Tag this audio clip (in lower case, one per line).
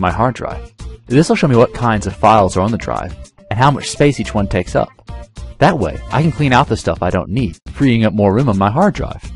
music
speech